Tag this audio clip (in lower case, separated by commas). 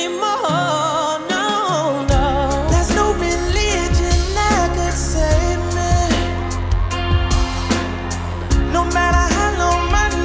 music